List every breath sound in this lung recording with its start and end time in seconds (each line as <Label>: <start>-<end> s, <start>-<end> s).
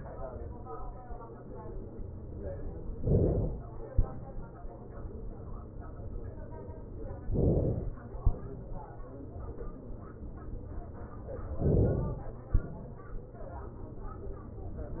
Inhalation: 3.01-3.89 s, 7.32-8.26 s, 11.60-12.49 s
Exhalation: 3.89-5.16 s, 8.26-9.62 s, 12.49-13.91 s